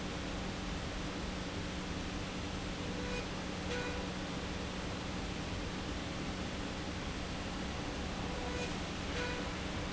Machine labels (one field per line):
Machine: slide rail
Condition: normal